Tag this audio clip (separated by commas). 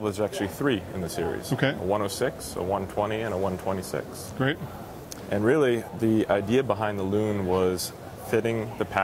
Speech